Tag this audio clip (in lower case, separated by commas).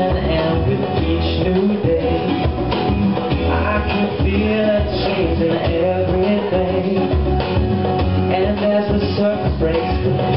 male singing, music